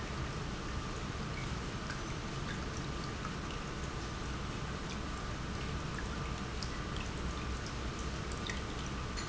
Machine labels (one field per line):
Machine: pump